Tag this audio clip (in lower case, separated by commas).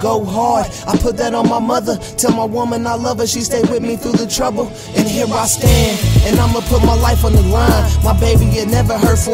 rhythm and blues, music